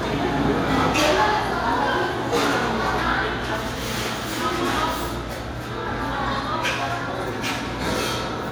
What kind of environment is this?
restaurant